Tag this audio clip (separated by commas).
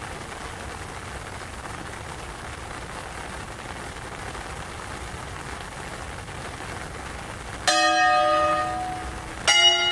Church bell, Change ringing (campanology)